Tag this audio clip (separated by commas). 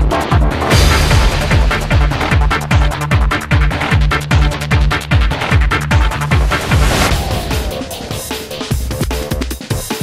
Throbbing, Trance music, Music, Techno, Drum and bass